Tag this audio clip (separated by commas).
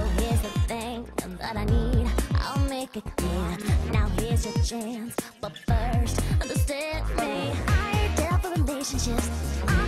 Pop music, Funk, Music